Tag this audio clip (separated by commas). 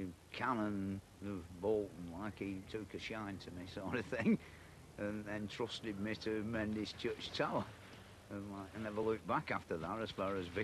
Speech